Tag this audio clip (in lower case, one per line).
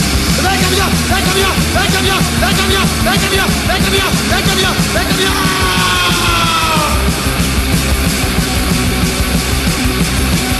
music
punk rock